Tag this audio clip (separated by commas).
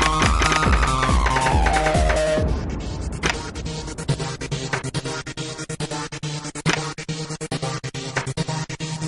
Music, Door